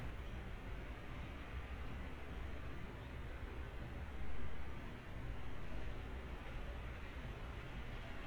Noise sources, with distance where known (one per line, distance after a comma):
background noise